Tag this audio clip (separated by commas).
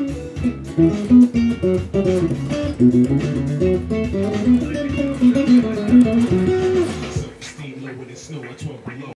Strum, Musical instrument, Electric guitar, Plucked string instrument, Music, Guitar